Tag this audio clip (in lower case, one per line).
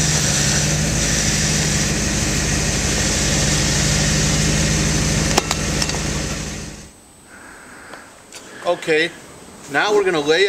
speech
medium engine (mid frequency)
idling